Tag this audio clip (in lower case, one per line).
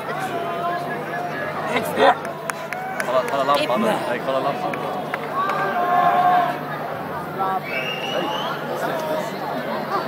speech